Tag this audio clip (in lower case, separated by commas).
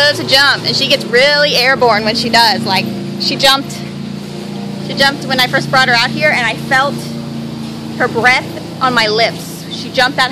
speech